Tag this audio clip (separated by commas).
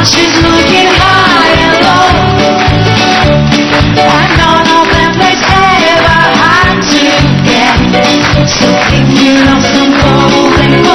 Music of Asia, Music